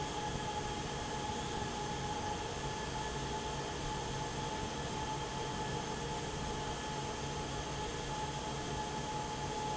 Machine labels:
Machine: fan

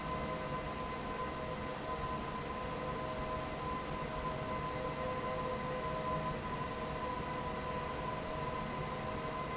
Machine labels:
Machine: fan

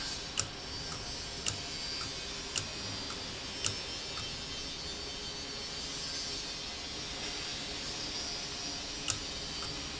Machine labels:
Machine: valve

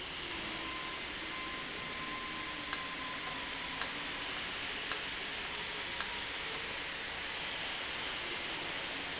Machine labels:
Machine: valve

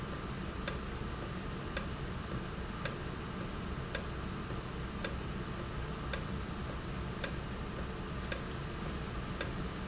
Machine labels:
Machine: valve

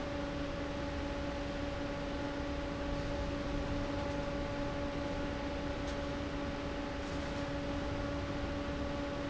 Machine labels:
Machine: fan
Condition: abnormal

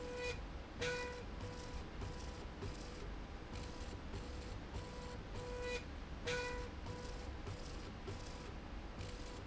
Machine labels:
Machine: slide rail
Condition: normal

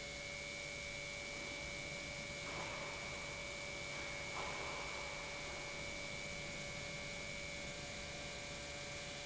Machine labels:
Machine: pump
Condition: normal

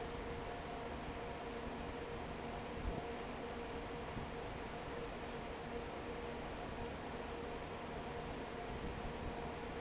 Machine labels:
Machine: fan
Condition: normal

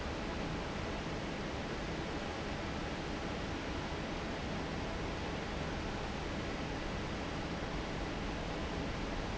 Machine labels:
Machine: fan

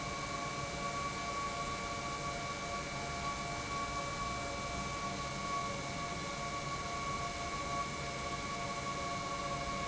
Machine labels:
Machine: pump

